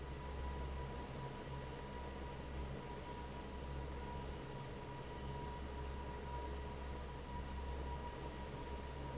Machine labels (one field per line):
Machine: fan